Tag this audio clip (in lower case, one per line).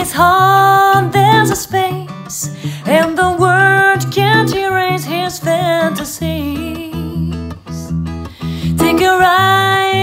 music